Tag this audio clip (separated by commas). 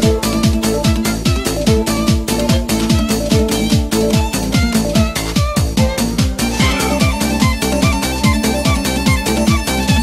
Music